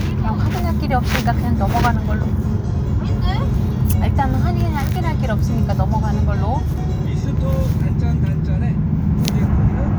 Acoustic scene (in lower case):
car